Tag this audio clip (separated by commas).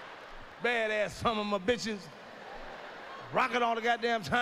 Speech